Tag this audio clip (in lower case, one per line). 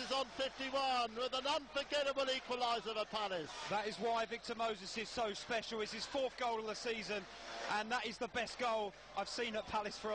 speech